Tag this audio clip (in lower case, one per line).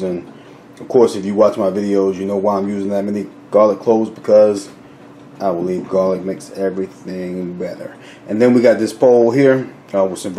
speech